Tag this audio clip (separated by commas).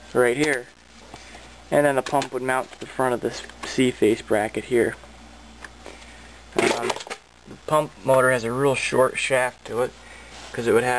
Speech